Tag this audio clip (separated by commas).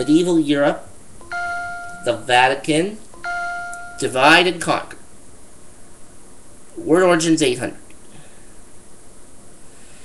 Speech